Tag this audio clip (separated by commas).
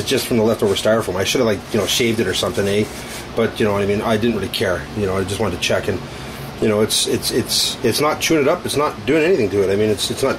Speech